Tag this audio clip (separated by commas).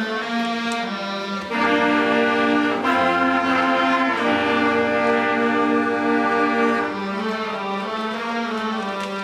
Music